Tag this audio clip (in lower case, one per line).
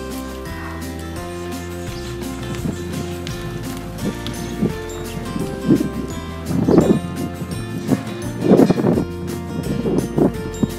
music